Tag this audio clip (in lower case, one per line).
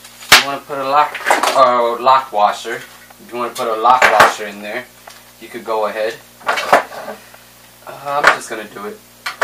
speech